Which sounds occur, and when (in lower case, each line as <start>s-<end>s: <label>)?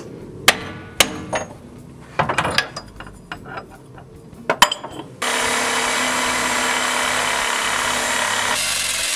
0.0s-9.1s: mechanisms
0.5s-0.7s: hammer
1.0s-1.1s: hammer
1.3s-1.6s: hammer
2.2s-4.0s: tools
4.4s-5.0s: tools
8.5s-9.1s: music